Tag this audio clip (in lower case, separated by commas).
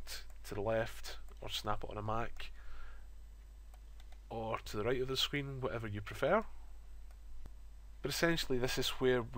speech